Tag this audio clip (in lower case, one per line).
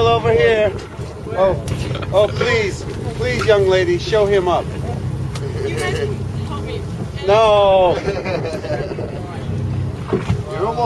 speech
water vehicle
vehicle